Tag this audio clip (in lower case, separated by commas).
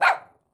animal, domestic animals, dog, bark